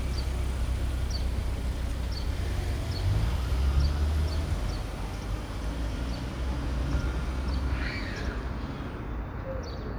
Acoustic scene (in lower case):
residential area